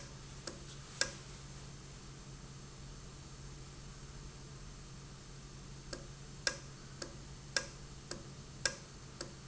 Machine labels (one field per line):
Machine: valve